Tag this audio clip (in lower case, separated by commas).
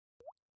water, rain, drip, liquid, raindrop